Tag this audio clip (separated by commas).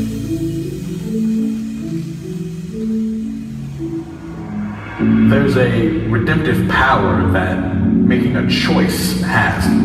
Percussion, Speech, Music